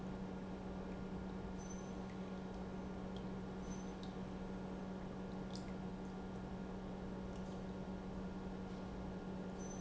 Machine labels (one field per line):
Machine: pump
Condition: normal